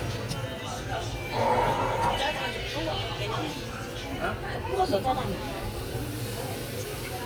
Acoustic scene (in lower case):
restaurant